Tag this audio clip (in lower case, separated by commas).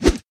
swish